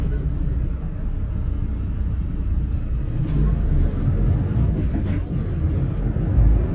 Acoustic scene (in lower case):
bus